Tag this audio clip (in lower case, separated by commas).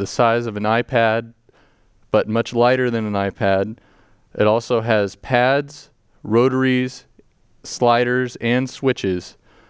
speech